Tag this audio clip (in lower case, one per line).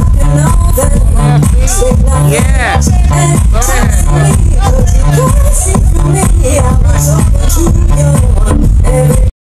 music
speech